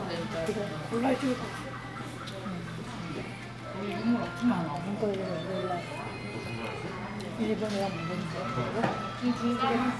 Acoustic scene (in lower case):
crowded indoor space